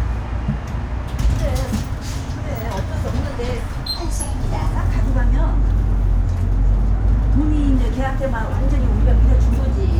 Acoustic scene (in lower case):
bus